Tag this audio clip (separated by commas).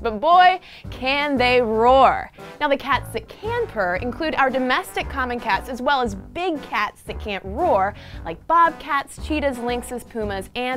Speech